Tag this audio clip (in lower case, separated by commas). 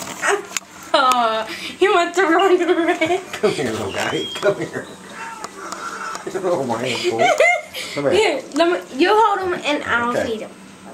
speech